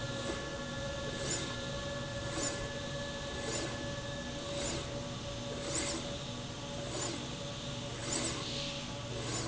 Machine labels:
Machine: slide rail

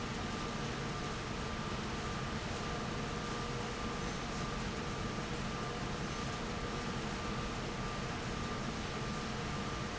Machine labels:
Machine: fan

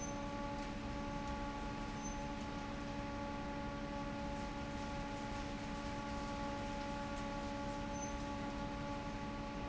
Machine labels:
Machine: fan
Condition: normal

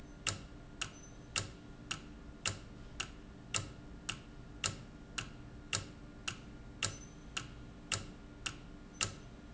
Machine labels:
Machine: valve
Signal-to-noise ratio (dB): 6 dB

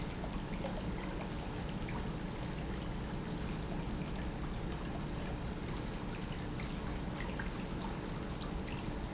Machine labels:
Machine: pump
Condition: normal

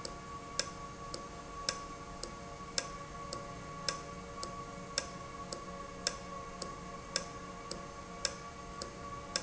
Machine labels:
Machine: valve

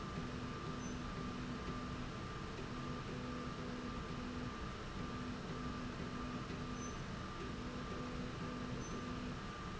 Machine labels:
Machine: slide rail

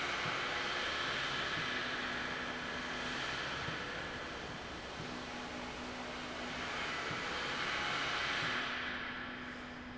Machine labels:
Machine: slide rail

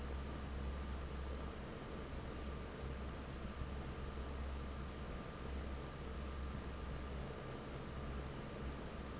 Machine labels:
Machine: fan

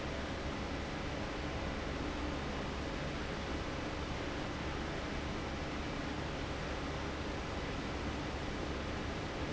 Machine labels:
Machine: fan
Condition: abnormal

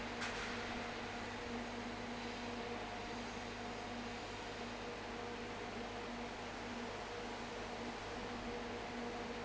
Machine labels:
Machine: fan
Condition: abnormal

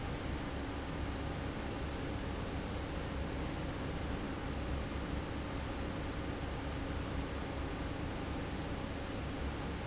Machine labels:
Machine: fan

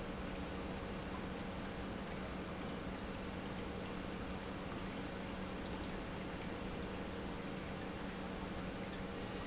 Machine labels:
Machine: pump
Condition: normal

